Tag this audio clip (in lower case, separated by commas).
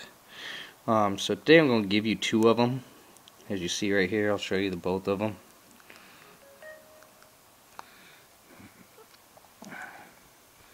speech